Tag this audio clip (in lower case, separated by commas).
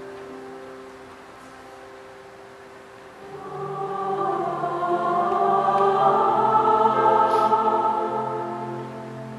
choir, music